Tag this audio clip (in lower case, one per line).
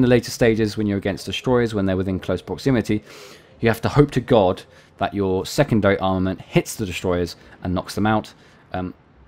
speech